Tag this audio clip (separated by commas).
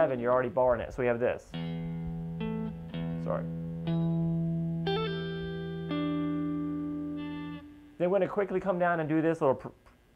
Guitar, Plucked string instrument, Musical instrument